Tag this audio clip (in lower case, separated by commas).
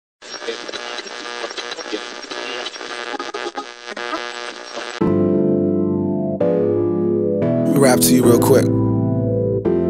music